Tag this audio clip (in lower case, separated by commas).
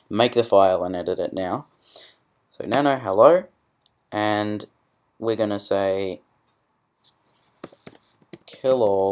speech, clicking